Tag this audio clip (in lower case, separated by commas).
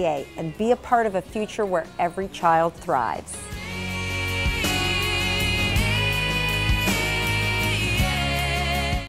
music, speech